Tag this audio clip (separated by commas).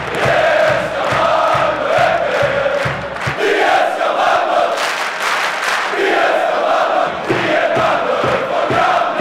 Music